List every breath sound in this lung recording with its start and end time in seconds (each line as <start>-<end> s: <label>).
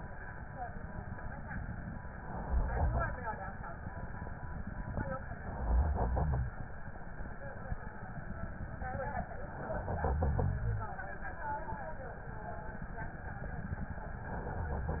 2.15-3.26 s: inhalation
5.29-6.40 s: inhalation
9.72-10.93 s: inhalation
14.22-15.00 s: inhalation